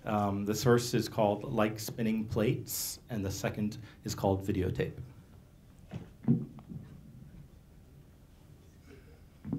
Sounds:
Speech

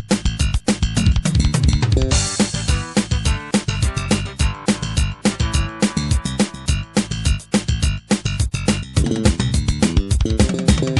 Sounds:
Music, Video game music

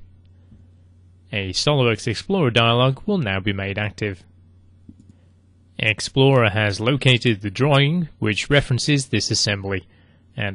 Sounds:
Speech

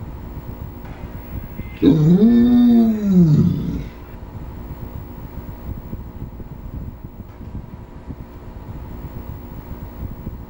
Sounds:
Animal, Yip, Dog, pets

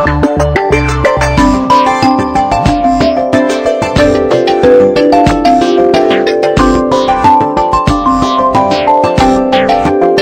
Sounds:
Music

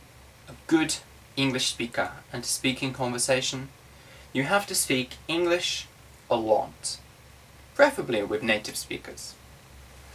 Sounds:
Speech

